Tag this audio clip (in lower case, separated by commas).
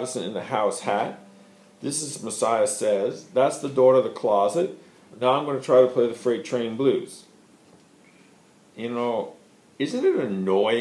speech